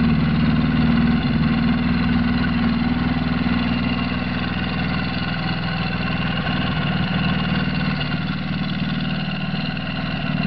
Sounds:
idling, engine, medium engine (mid frequency), vehicle

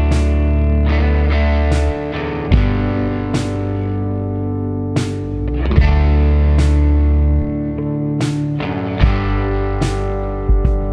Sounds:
music

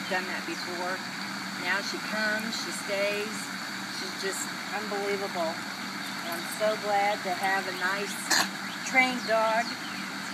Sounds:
domestic animals, animal, speech

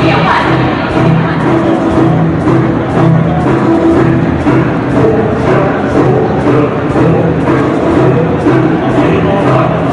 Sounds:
speech, music

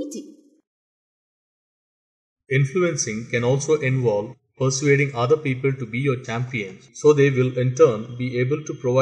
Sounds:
speech

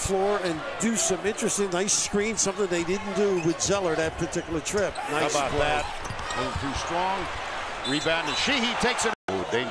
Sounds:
basketball bounce

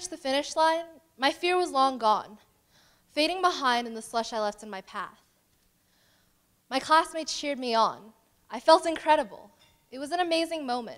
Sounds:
female speech, narration, speech

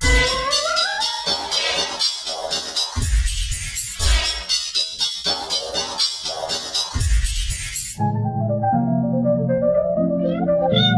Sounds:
music, theremin

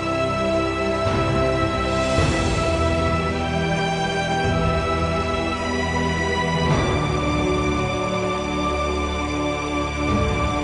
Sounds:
music

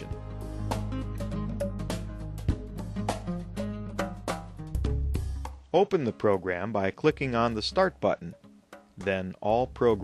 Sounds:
music, speech

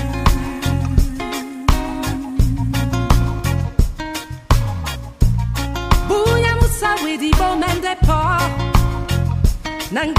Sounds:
music

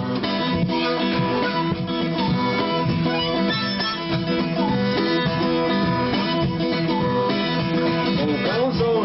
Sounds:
music

